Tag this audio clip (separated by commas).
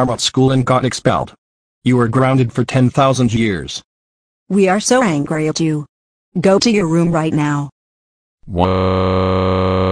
Speech